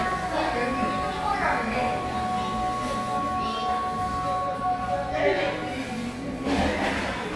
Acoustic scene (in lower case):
crowded indoor space